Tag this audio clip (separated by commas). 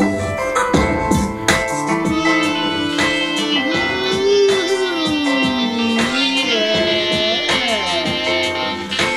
Music